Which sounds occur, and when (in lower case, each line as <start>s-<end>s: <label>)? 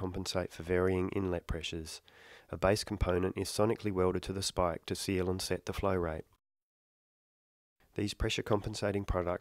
0.0s-1.9s: man speaking
2.0s-2.4s: breathing
2.5s-6.3s: man speaking
7.9s-9.4s: man speaking